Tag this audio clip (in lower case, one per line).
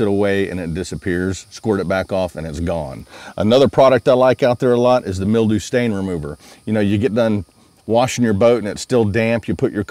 speech